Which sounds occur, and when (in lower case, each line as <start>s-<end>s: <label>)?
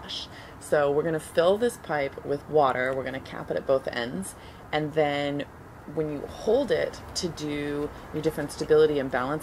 0.0s-0.2s: woman speaking
0.0s-9.4s: wind
0.3s-0.5s: breathing
0.7s-1.2s: woman speaking
1.4s-4.2s: woman speaking
4.4s-4.6s: breathing
4.6s-5.5s: woman speaking
5.9s-6.9s: woman speaking
7.1s-7.8s: woman speaking
7.9s-8.1s: breathing
8.1s-9.4s: woman speaking